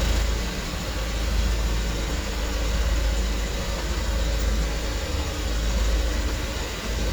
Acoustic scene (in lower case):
street